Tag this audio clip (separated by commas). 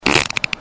Fart